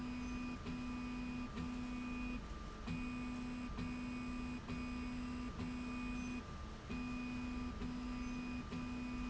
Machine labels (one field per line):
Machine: slide rail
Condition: normal